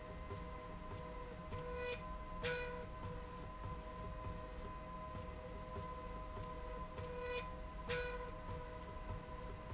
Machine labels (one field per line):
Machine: slide rail